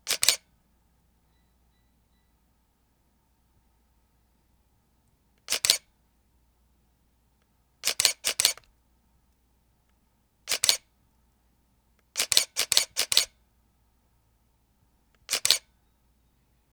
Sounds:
Mechanisms, Camera

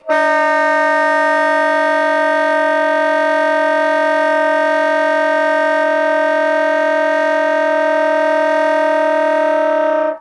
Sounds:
Musical instrument, Music, Wind instrument

